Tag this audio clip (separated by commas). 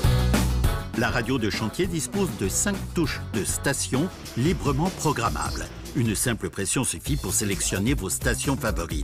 Music, Speech